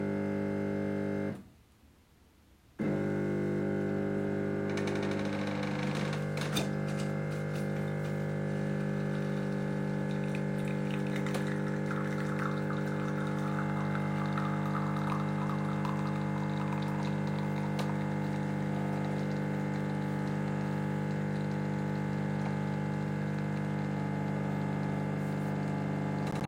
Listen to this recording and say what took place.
The coffee machine was heating up and then began pouring coffee into the cup.